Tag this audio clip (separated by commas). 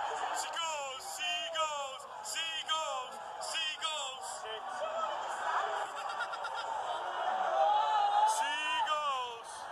Speech